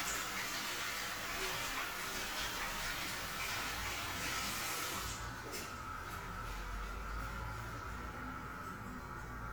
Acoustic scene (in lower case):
restroom